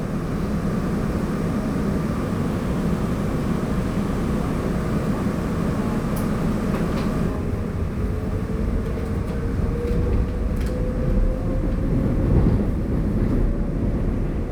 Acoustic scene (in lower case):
subway train